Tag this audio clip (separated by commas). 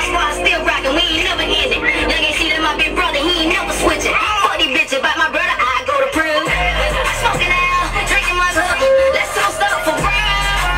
Music